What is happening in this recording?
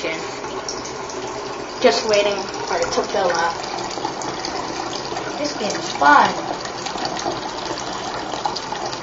Water is running and splashing, and a young person speaks